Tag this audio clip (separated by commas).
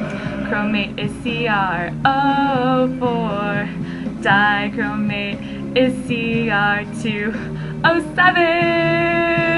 Music, inside a small room